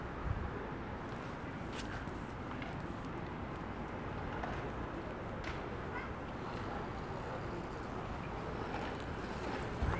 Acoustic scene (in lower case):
residential area